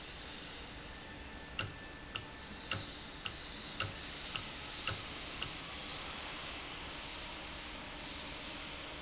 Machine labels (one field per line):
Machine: valve